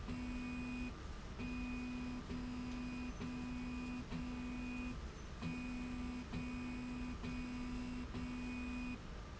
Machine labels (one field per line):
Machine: slide rail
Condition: normal